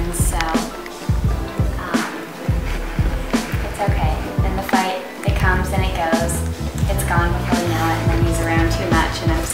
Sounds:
music, speech

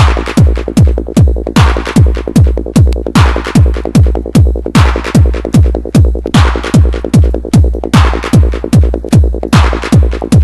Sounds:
techno, music, electronic music

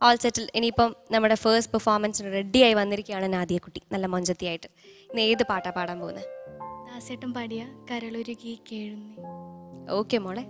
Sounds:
speech, music

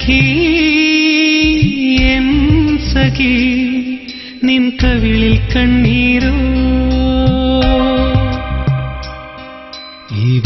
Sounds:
soundtrack music, sad music, music

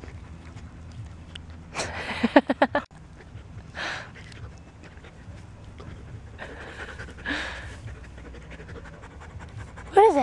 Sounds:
speech

